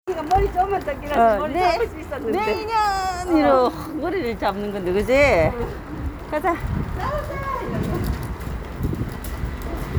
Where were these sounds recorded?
in a residential area